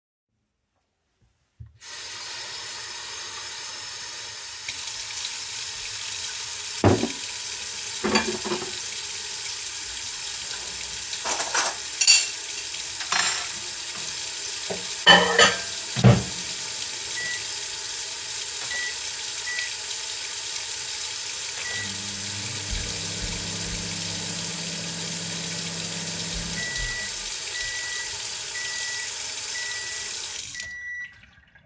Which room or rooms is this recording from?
kitchen